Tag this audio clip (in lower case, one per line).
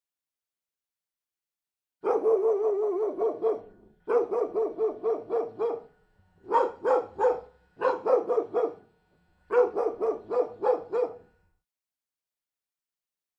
pets
dog
animal
bark